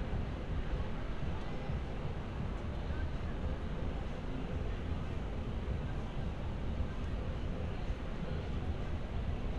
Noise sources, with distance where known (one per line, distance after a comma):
person or small group talking, far